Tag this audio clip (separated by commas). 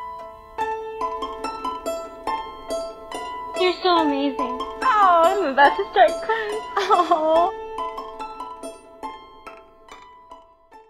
Music, Speech